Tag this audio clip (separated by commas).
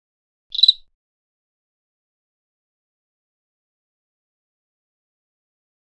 Cricket, Insect, Wild animals, Animal